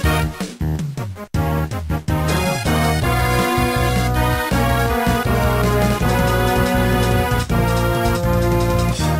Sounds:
Soundtrack music, Music

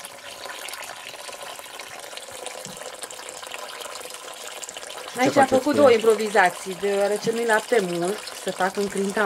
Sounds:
Speech

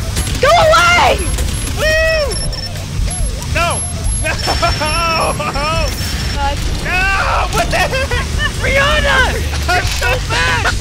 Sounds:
Music, Speech

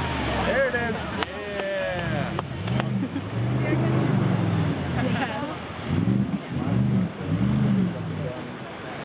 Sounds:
Water vehicle, Motorboat, Vehicle, Speech

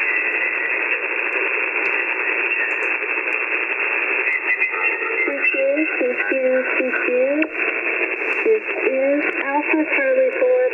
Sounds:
monologue, Speech, Radio

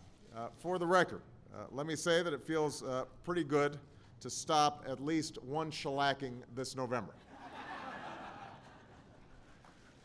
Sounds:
Speech

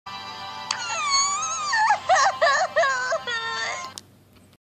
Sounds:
Whimper, Music

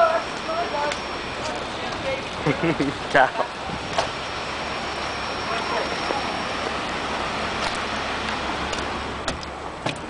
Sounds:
Speech

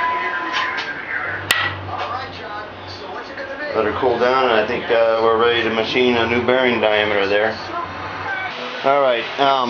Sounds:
inside a large room or hall, Speech

